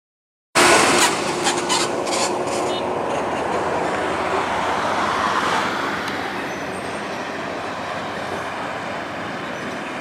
Several vehicle drive by